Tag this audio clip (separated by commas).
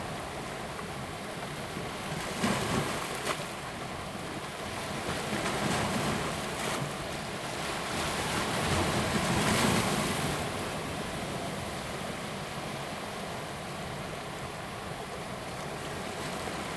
Water, surf, Ocean